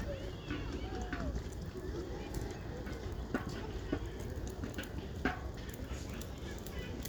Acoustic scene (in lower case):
residential area